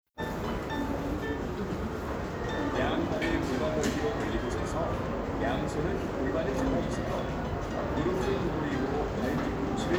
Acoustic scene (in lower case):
crowded indoor space